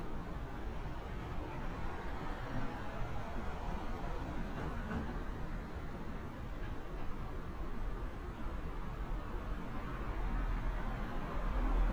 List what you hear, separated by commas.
medium-sounding engine